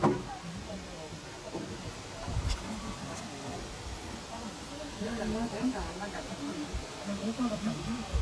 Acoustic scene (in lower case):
park